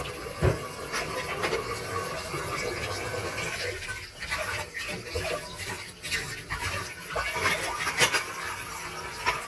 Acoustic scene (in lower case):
kitchen